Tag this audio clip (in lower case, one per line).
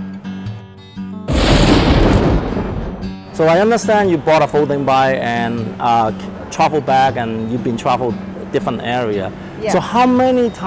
music
speech
explosion